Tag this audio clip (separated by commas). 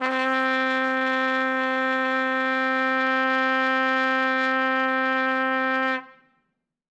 Trumpet, Brass instrument, Musical instrument, Music